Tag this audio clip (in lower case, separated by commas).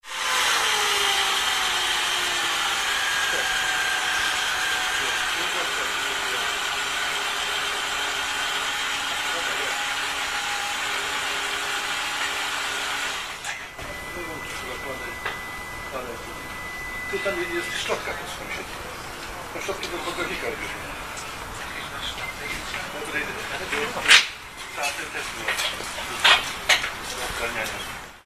conversation, speech, human voice